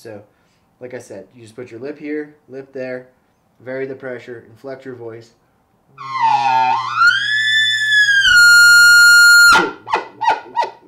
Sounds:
elk bugling

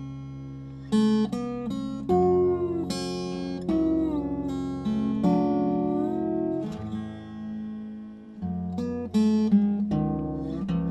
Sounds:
slide guitar

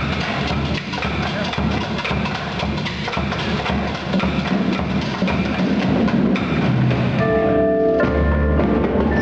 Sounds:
glockenspiel
xylophone
mallet percussion

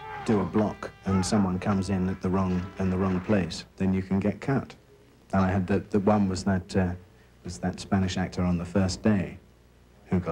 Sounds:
speech

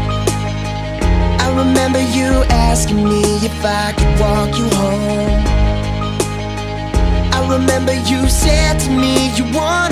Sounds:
singing
music

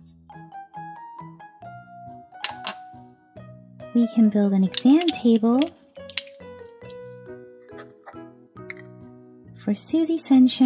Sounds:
music
inside a small room
speech

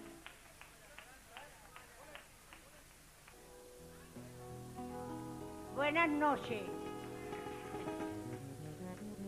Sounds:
speech
music

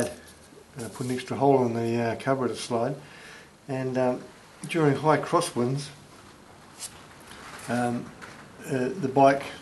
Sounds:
speech

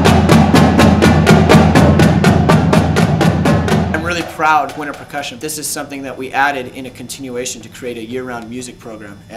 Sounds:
wood block
speech
music

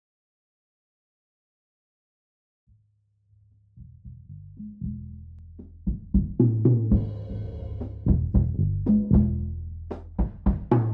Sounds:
strike lighter

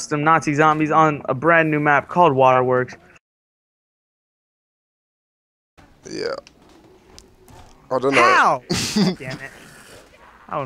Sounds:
speech

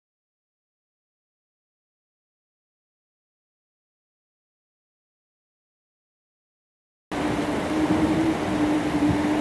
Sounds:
water vehicle
speedboat
vehicle

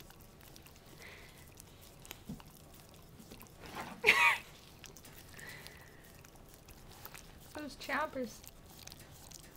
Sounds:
speech

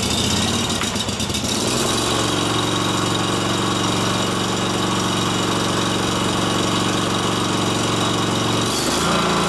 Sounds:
lawn mower
engine knocking
car engine knocking
engine

